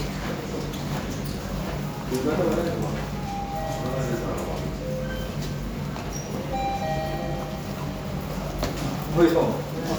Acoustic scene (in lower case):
elevator